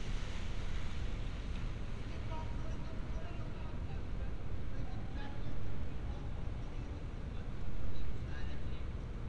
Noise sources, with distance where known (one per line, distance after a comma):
unidentified human voice